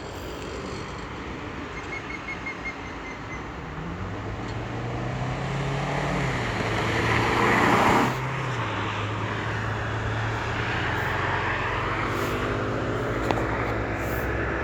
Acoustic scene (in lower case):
street